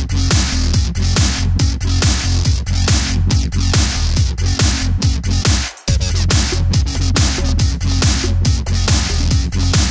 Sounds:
Trance music, Techno, Dubstep, Music, Electronic music

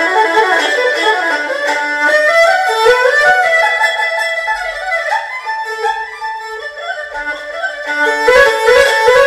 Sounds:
playing erhu

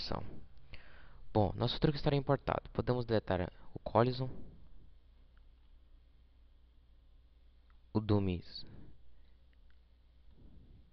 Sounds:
Speech

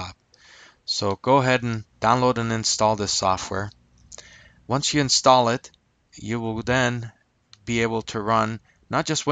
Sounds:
Speech

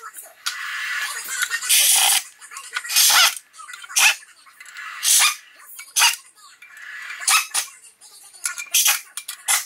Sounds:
Speech

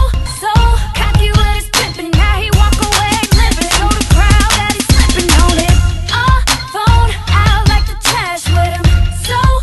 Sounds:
Music

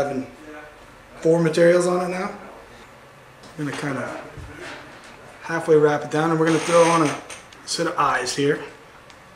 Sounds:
Speech

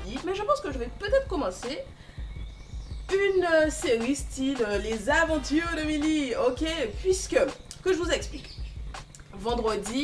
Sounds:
Speech, Music

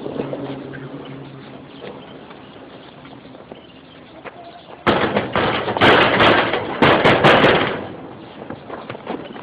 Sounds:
Crackle

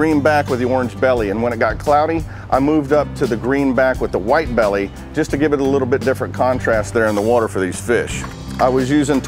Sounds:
mosquito buzzing

